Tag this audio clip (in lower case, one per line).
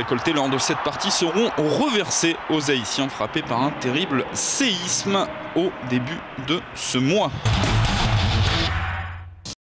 speech
music